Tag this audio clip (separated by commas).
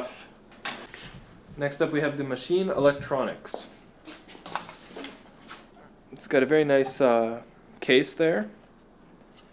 Speech, inside a small room